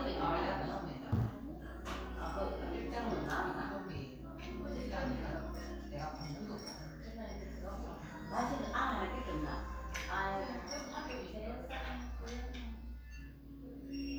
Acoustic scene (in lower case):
crowded indoor space